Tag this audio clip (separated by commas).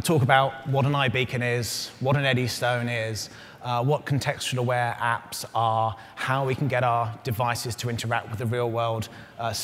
Speech